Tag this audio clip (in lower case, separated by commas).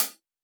hi-hat, music, percussion, cymbal, musical instrument